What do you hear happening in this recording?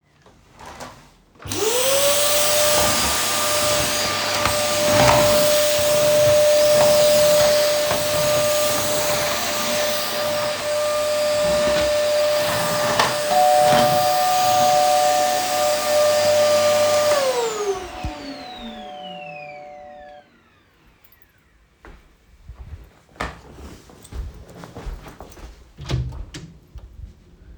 I turned on the vacuum cleaner and began vacuuming the floor. While the vacuum was still running the doorbell rang. I turned off the vacuum cleaner and walked to the front door and opened the door.